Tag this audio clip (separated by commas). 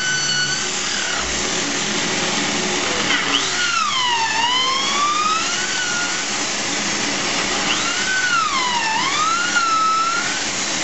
Tools